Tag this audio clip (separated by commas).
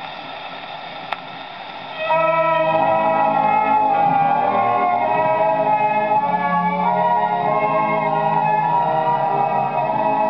Music